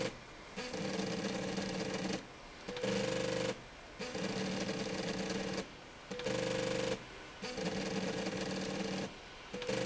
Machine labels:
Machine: slide rail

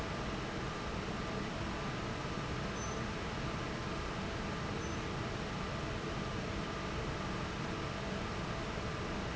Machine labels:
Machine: fan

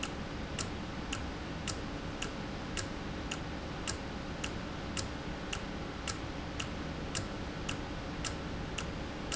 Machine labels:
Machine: valve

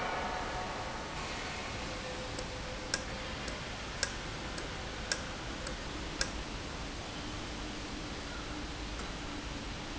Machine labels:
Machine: valve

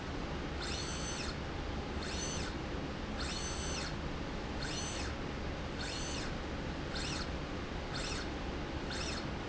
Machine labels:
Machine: slide rail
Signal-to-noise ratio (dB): -6 dB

